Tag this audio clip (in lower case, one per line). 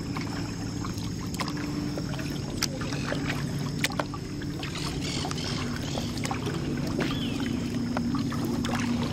kayak
boat